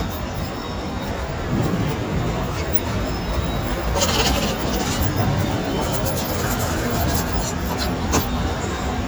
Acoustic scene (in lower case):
subway station